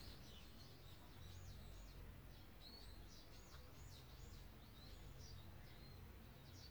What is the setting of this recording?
park